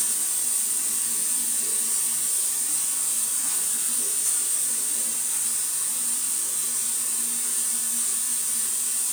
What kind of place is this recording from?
restroom